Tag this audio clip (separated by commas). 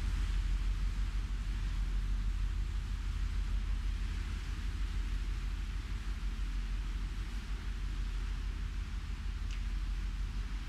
Wind, Wind noise (microphone)